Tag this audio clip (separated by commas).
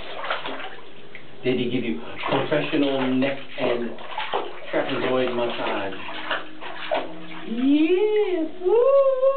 Water, Bathtub (filling or washing)